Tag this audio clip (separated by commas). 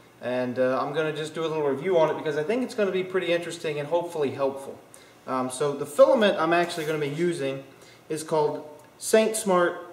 Speech